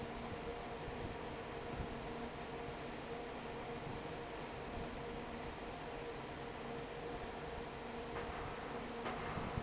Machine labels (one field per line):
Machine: fan